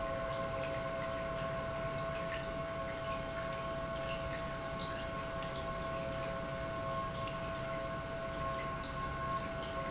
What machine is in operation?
pump